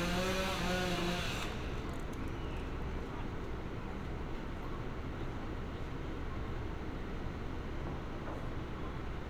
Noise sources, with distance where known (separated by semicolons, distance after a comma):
engine of unclear size, near